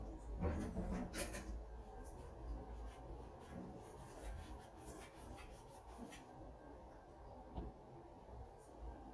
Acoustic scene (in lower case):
kitchen